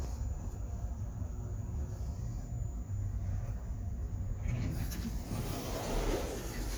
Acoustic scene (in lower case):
elevator